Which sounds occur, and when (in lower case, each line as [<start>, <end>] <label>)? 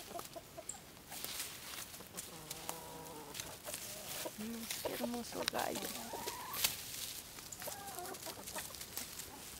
[0.00, 1.27] cluck
[0.00, 9.55] background noise
[0.24, 0.36] tick
[0.73, 0.89] bird song
[1.87, 6.68] cluck
[2.74, 2.84] tick
[3.11, 3.19] tick
[3.38, 3.64] generic impact sounds
[4.45, 4.77] woman speaking
[4.90, 6.20] woman speaking
[5.51, 5.60] generic impact sounds
[6.61, 6.77] generic impact sounds
[7.44, 7.54] tick
[7.53, 8.74] cluck
[8.99, 9.55] cluck